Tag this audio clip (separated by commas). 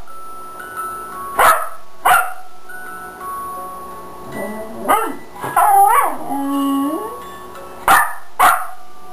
Yip, Dog, pets, Music, Bow-wow, Animal